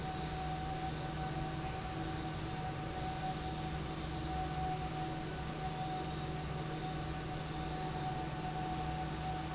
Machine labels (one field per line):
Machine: fan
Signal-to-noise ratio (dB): -6 dB